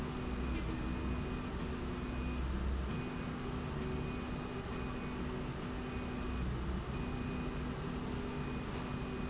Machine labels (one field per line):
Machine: slide rail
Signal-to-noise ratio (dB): -6 dB